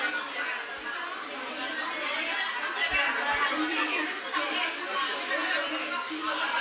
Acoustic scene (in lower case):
restaurant